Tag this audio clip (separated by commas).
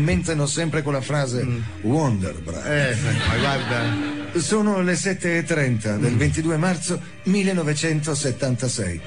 Music, Speech